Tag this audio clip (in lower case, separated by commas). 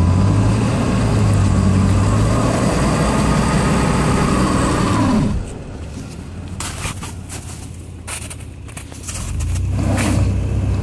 vehicle, car